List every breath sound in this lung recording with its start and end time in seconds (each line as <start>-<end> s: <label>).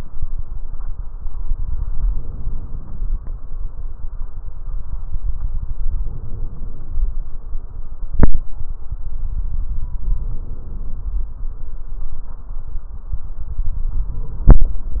2.03-2.86 s: inhalation
5.88-6.98 s: inhalation
10.08-11.18 s: inhalation
14.08-15.00 s: inhalation